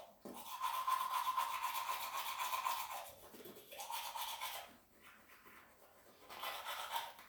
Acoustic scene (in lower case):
restroom